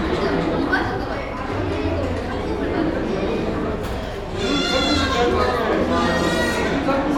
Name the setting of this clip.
cafe